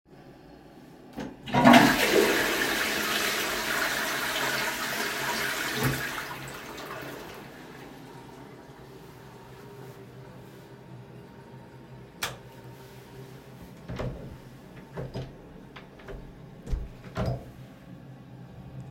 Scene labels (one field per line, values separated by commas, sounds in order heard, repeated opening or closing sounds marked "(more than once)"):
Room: lavatory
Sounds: toilet flushing, light switch, door (more than once), footsteps